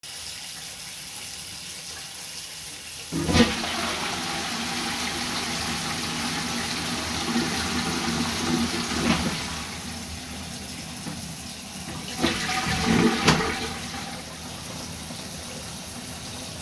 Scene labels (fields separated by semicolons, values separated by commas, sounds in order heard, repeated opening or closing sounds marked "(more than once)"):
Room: bathroom; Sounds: running water, toilet flushing